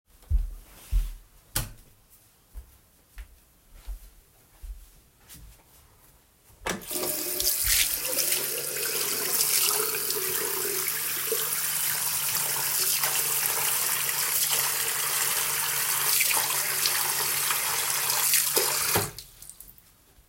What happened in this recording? I sat at my desk and began typing a document on my laptop keyboard. During this, my phone on the desk emitted a clear ringing notification.